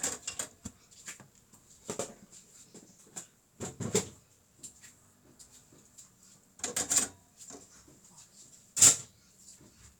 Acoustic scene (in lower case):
kitchen